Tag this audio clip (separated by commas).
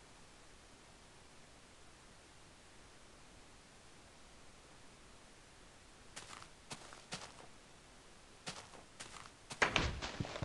Tap